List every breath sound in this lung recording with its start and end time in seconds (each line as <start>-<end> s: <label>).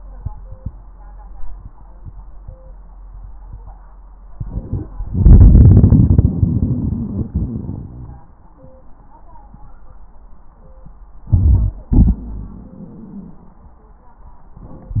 4.30-4.89 s: inhalation
5.08-8.25 s: exhalation
8.31-8.93 s: wheeze
11.29-11.81 s: inhalation
11.29-11.81 s: crackles
11.94-13.65 s: exhalation
12.21-12.78 s: wheeze